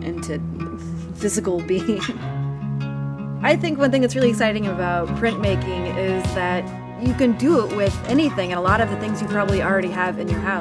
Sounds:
music, speech

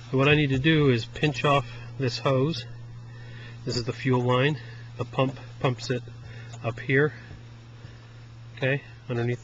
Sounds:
speech

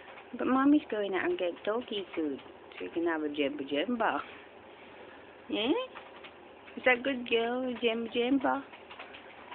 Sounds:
speech

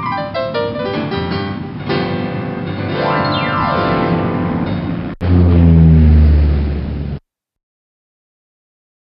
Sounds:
music, background music, theme music

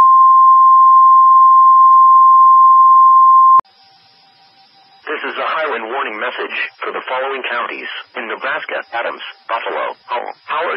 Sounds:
speech

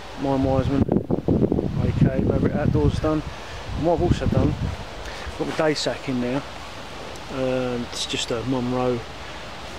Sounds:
speech, stream

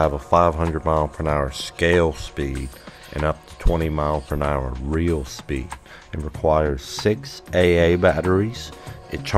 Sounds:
music, speech

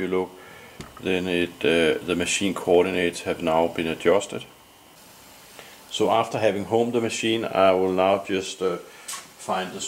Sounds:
speech, inside a small room

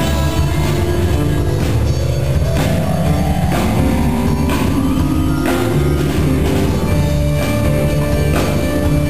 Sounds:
music

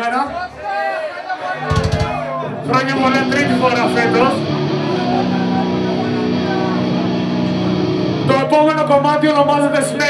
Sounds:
music, speech

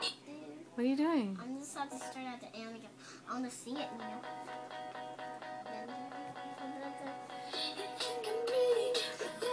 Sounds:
music, speech

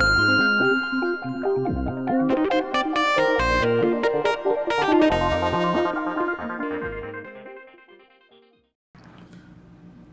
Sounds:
synthesizer

